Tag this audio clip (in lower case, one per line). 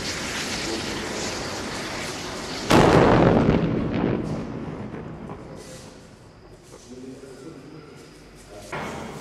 fire